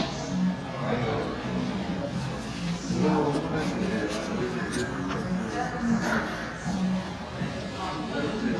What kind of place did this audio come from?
cafe